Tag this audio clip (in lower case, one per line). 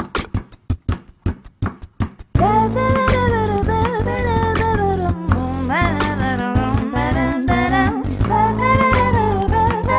beatboxing